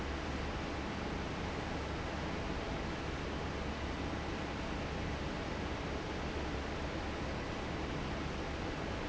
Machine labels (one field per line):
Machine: fan